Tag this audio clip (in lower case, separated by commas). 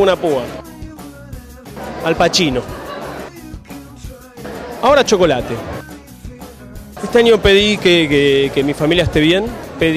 music, speech